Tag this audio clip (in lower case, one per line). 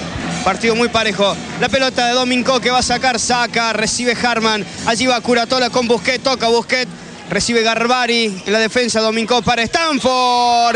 speech